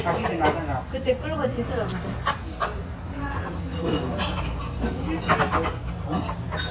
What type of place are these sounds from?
restaurant